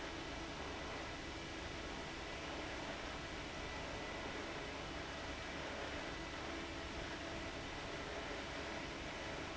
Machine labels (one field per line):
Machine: fan